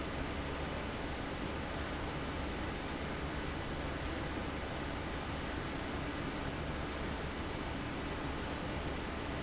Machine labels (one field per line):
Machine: fan